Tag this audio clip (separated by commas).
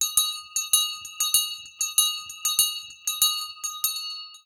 Bell